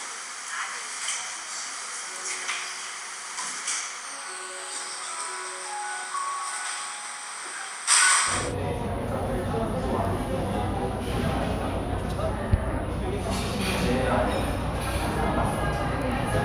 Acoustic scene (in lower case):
cafe